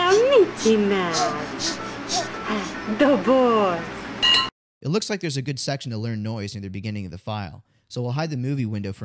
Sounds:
dishes, pots and pans, speech, music, reverberation

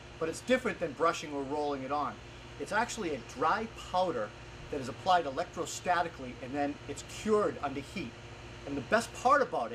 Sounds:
speech

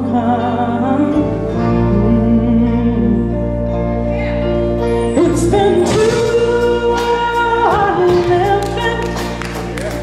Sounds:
soul music, music, rhythm and blues

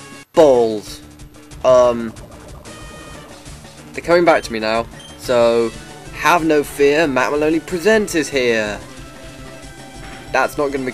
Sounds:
speech, music

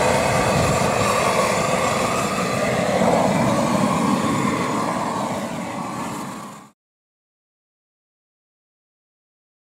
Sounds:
silence, outside, rural or natural

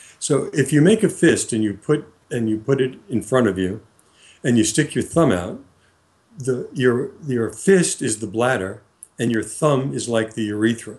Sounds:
speech

